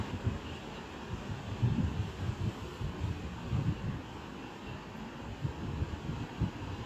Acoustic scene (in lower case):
residential area